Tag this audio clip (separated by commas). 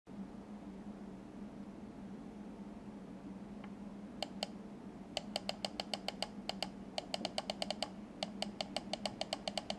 mouse clicking